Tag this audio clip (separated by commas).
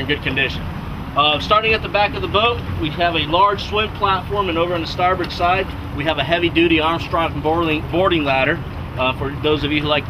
Speech